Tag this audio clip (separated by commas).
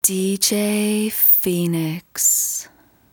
Female speech, Speech, Human voice